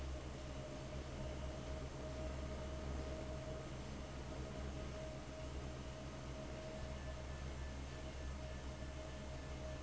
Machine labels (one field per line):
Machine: fan